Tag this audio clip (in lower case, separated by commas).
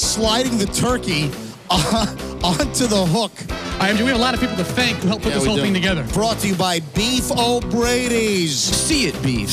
music, speech